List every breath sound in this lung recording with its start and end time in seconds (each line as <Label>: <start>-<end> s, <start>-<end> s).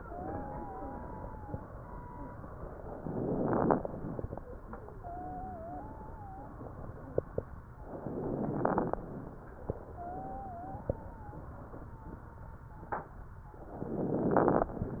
Inhalation: 2.94-4.22 s, 7.84-9.12 s, 13.68-14.82 s
Wheeze: 0.00-1.68 s, 4.94-6.56 s, 9.88-13.12 s
Crackles: 2.94-4.22 s, 7.84-9.12 s, 13.68-14.82 s